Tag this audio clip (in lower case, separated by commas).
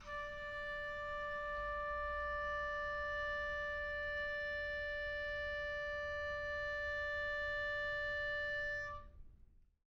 music, wind instrument, musical instrument